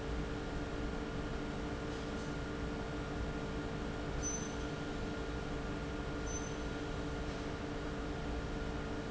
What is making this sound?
fan